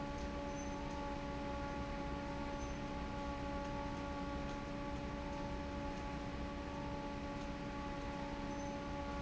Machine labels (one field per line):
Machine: fan